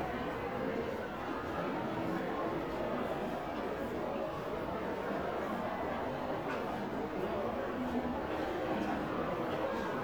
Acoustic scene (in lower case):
crowded indoor space